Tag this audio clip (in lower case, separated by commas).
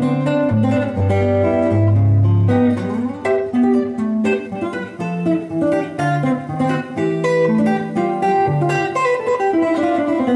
guitar, musical instrument, music, strum, plucked string instrument